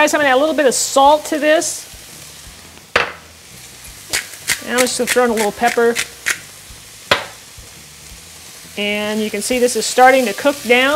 A woman speaking while adding salt to a pan that is sizzling